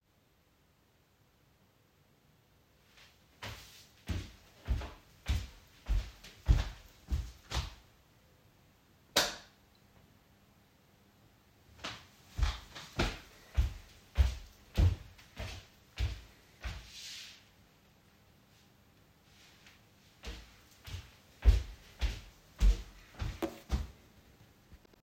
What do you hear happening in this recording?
I walked to the light switch, turned it on and walked again.